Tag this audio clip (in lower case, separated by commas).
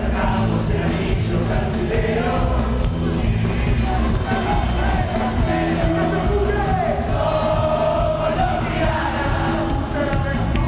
music, disco